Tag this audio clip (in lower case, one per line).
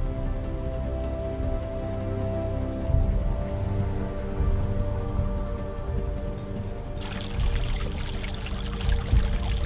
music
pour